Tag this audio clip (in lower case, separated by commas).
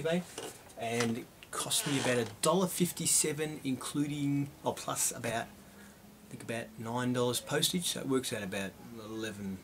speech